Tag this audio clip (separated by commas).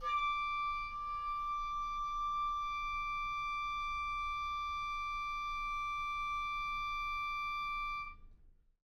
Musical instrument, Music, Wind instrument